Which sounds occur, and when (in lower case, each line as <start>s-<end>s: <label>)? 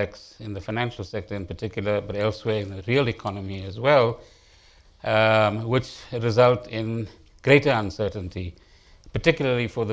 0.0s-4.1s: man speaking
0.0s-9.9s: background noise
4.1s-4.9s: breathing
5.0s-5.8s: man speaking
5.8s-6.1s: breathing
6.1s-7.1s: man speaking
7.2s-7.3s: generic impact sounds
7.4s-8.5s: man speaking
8.5s-8.6s: clicking
8.6s-9.0s: breathing
9.0s-9.1s: clicking
9.1s-9.9s: man speaking